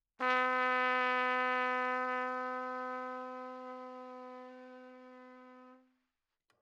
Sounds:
Trumpet, Brass instrument, Musical instrument, Music

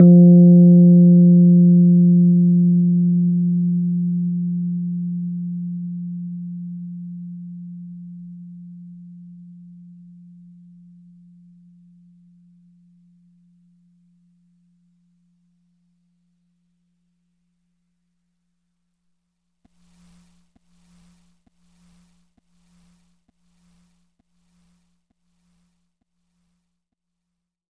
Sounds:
Piano, Music, Keyboard (musical), Musical instrument

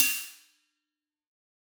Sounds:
Hi-hat, Percussion, Cymbal, Musical instrument, Music

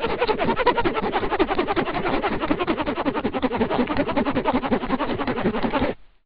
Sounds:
Domestic sounds, Zipper (clothing)

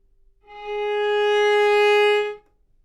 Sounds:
Bowed string instrument, Musical instrument, Music

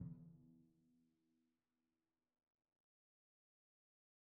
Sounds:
Musical instrument, Music, Percussion, Drum

